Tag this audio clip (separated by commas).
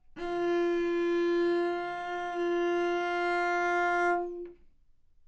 Bowed string instrument, Musical instrument, Music